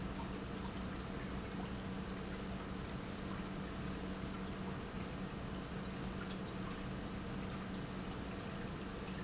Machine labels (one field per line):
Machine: pump